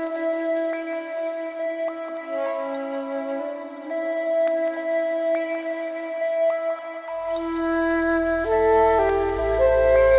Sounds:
music

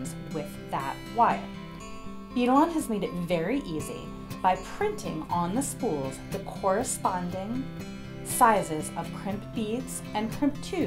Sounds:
music, speech

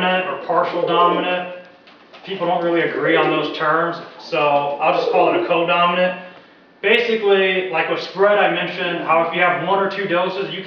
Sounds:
coo, pigeon, bird, bird vocalization

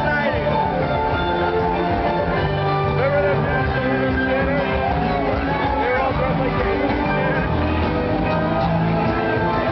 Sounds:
music, speech

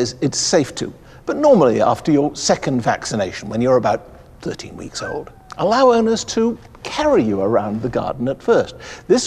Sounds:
speech

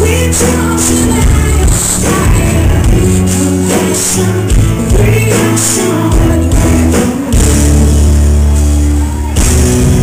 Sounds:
music

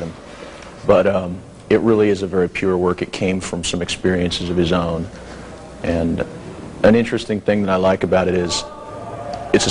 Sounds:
speech

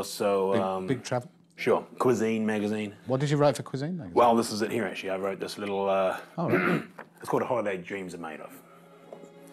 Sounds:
speech

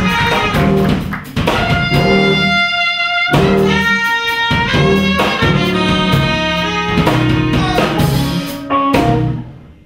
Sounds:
music, jazz

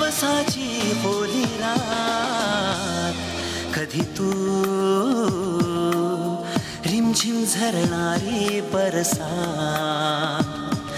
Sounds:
music of bollywood, music, singing

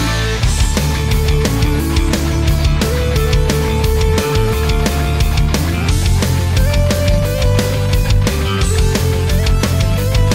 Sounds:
music

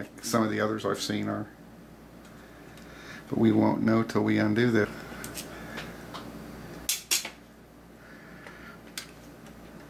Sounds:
speech

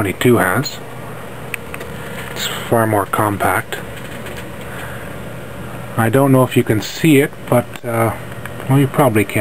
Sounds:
speech

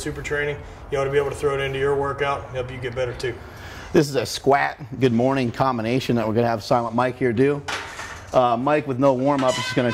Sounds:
speech

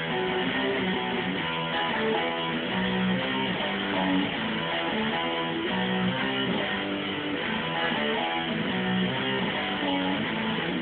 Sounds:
strum, musical instrument, music, guitar, plucked string instrument, electric guitar

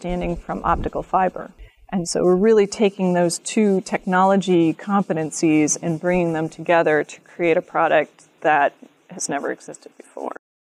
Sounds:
speech

